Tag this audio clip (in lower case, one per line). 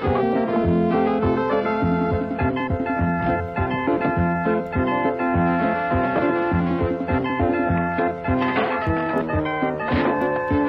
music